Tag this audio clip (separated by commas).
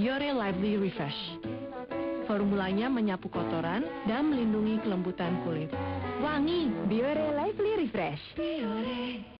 Speech, Music